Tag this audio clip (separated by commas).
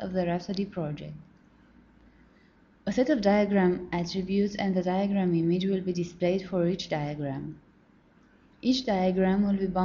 Speech